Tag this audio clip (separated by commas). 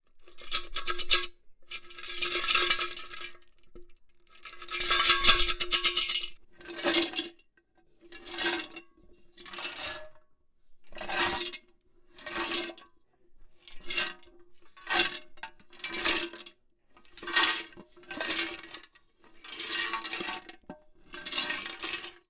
Rattle